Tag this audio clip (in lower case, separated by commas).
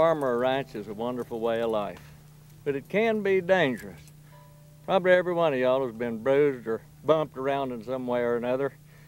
speech